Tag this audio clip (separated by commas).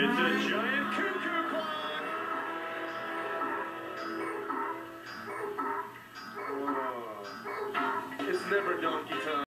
Speech, Music